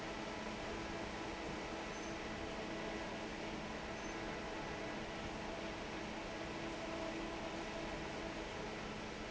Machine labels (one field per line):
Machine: fan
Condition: normal